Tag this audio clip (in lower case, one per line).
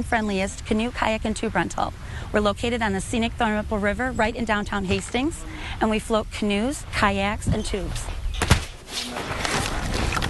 speech